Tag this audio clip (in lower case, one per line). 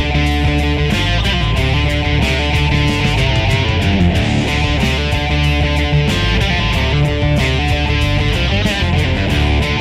music
guitar
strum
electric guitar
acoustic guitar
plucked string instrument
musical instrument